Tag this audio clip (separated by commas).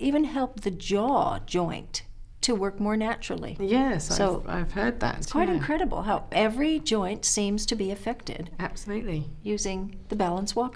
Speech